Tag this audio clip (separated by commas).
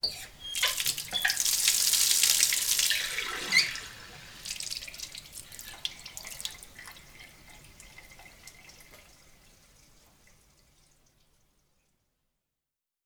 Water tap, home sounds